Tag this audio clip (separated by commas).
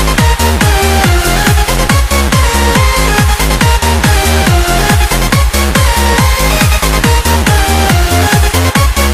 Music, Techno